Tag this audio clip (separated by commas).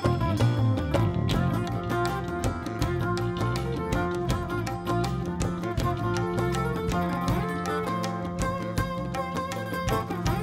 Music